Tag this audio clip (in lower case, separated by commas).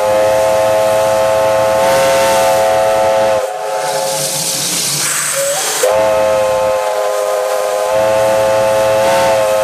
railroad car, train whistle, train, steam whistle, hiss, steam, rail transport